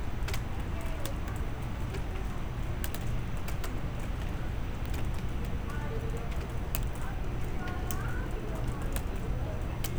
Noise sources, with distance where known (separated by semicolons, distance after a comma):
person or small group talking